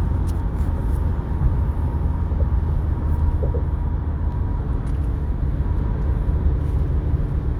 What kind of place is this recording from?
car